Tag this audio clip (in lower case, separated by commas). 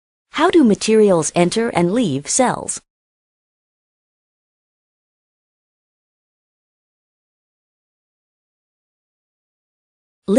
speech